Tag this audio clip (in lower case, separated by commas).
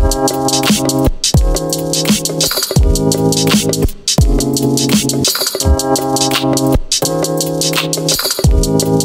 music, dance music